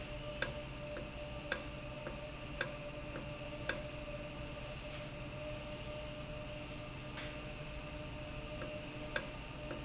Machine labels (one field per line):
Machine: valve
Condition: normal